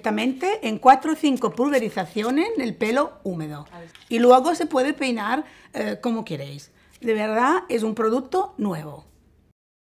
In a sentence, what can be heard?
A female gives a speech as she squeezes a couple of short sprays from a bottle